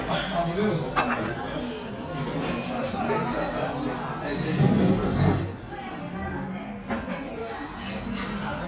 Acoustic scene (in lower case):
restaurant